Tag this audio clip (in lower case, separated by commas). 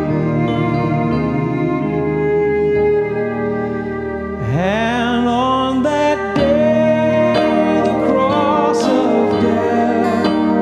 music, musical instrument, fiddle